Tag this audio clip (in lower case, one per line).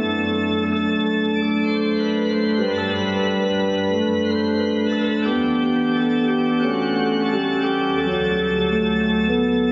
music
electronic organ
playing electronic organ